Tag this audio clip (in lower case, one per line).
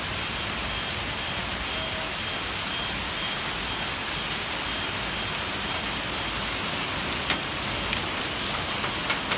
hail